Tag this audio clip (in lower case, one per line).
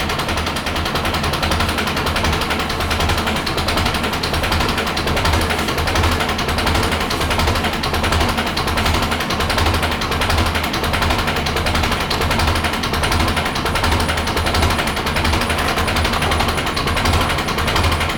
engine